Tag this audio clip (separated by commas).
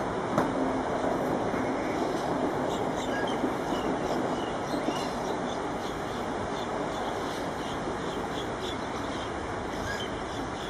Bird